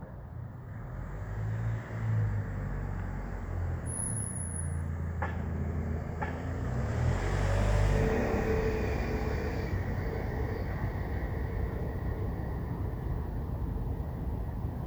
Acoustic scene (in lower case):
residential area